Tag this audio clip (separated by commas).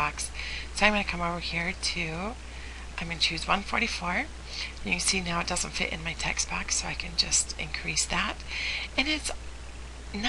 Speech